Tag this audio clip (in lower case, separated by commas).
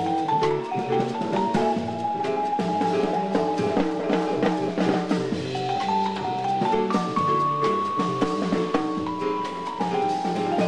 percussion, musical instrument, vibraphone, music